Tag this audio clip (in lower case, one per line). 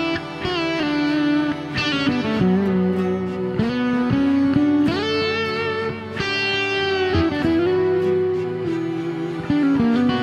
music